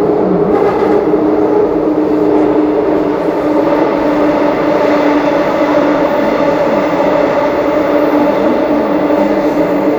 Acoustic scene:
subway train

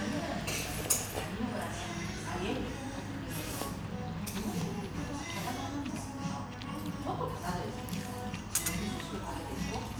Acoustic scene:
restaurant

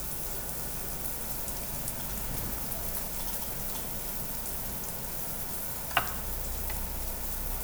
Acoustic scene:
restaurant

